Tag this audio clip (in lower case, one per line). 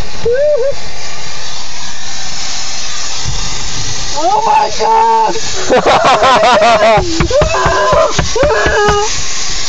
speech